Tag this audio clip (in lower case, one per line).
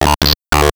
speech
human voice
speech synthesizer